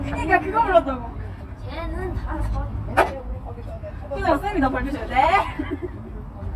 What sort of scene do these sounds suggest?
park